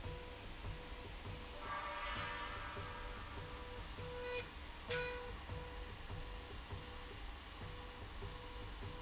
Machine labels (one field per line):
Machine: slide rail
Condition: normal